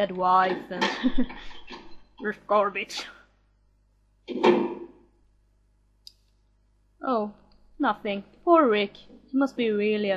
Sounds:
Speech

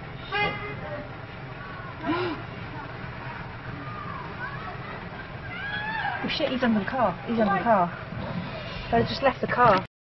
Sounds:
Speech

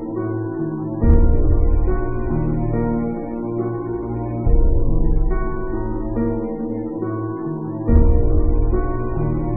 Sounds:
Music

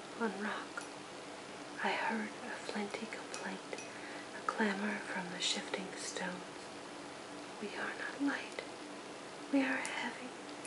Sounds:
Speech

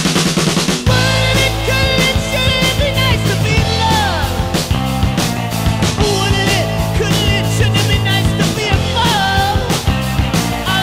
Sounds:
Music

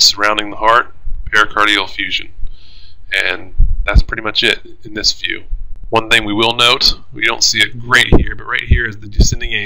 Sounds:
Speech

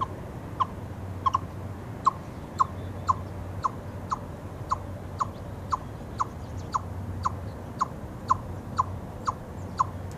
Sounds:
chipmunk chirping

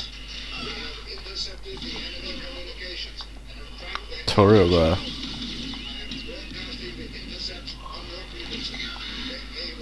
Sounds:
Speech

